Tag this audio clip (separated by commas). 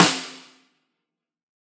Drum, Percussion, Snare drum, Music, Musical instrument